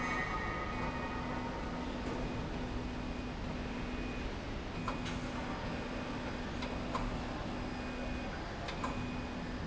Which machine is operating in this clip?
slide rail